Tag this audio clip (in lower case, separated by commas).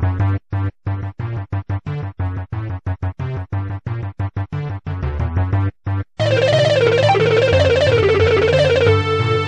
music, musical instrument